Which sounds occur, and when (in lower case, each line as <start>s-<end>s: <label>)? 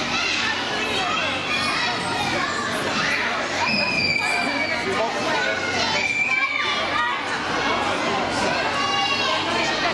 0.0s-9.9s: crowd